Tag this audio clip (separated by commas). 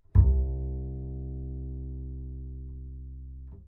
Music, Bowed string instrument, Musical instrument